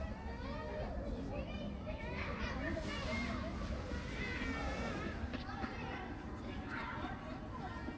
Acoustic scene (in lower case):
park